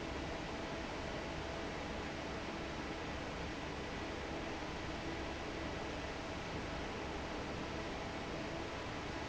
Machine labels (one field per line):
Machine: fan